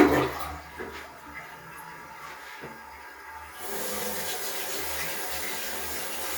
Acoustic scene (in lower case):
restroom